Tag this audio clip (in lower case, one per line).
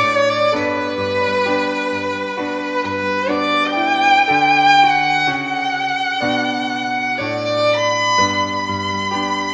playing oboe